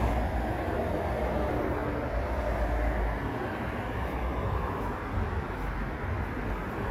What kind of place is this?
street